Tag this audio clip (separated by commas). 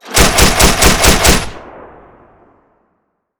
gunfire, Explosion